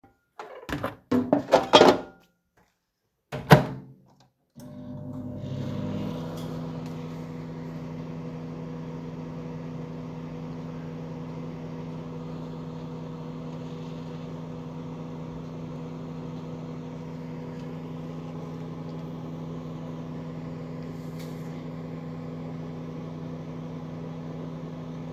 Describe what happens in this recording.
I opened the microwave and placed the bowl with food (faster) and turned the microwave and it runs